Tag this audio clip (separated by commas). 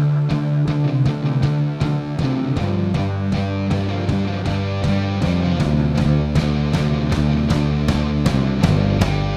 Music